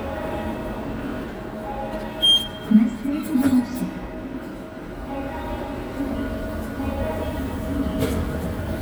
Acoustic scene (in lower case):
subway station